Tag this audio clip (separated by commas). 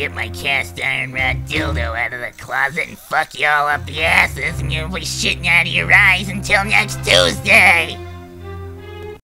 Speech, Music